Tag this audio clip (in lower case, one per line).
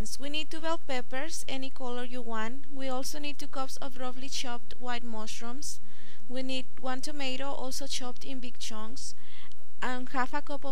speech